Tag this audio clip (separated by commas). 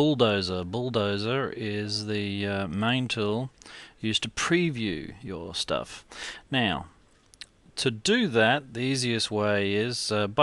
Speech